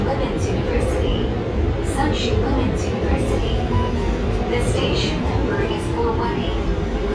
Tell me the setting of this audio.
subway train